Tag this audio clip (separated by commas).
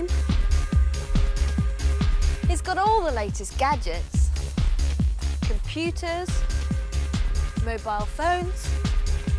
Music, Speech